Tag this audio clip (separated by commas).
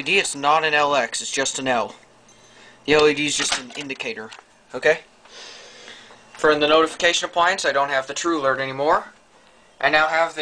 Speech